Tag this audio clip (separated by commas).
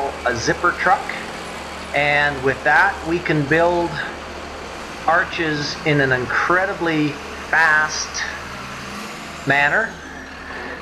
Speech